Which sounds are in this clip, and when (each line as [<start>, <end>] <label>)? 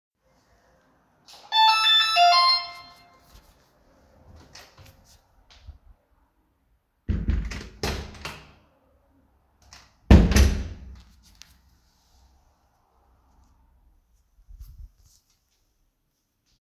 [1.18, 2.94] bell ringing
[7.00, 8.77] door
[9.73, 11.53] door